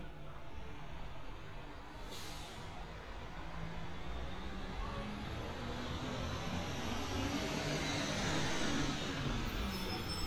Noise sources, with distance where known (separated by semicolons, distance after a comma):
large-sounding engine, near